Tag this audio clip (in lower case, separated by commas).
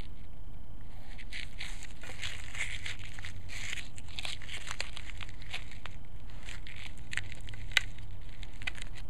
crackle